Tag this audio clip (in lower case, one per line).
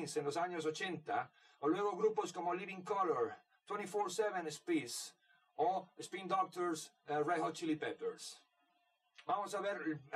speech